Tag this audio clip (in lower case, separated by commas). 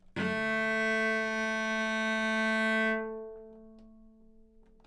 musical instrument, music, bowed string instrument